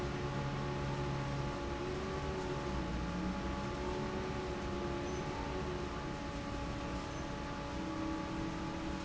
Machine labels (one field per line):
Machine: fan